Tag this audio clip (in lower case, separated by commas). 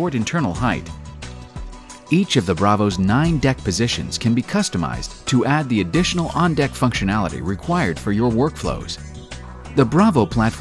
speech, music